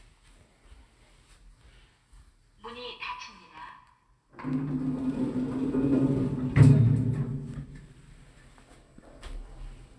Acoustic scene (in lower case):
elevator